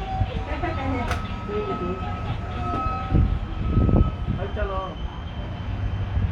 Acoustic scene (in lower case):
residential area